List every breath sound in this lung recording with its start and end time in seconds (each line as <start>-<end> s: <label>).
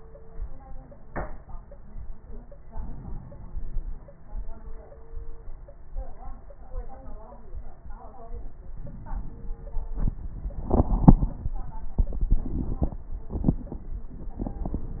2.70-3.98 s: inhalation
8.79-10.06 s: inhalation